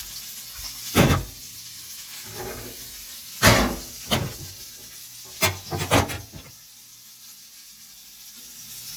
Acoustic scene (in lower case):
kitchen